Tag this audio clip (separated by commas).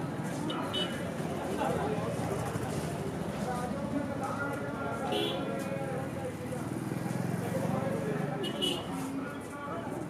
bull bellowing